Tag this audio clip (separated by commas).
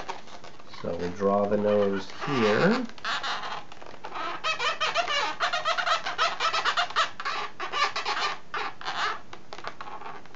inside a small room, Speech